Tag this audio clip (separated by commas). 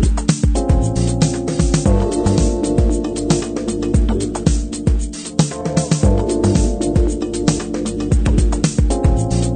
Music